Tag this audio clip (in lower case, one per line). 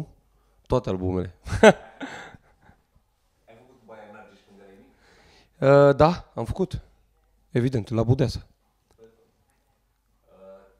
speech